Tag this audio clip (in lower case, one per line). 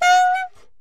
musical instrument
woodwind instrument
music